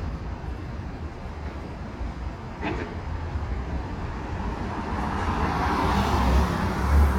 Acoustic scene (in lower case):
residential area